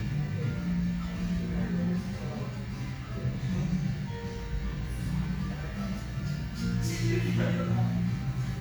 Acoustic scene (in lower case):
cafe